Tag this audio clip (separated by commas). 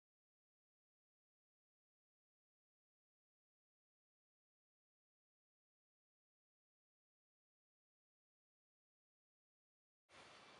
Silence